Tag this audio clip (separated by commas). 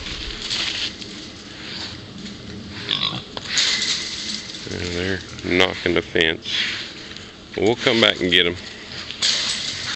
Speech, Oink